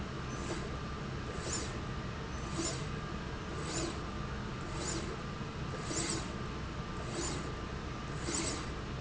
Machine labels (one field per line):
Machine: slide rail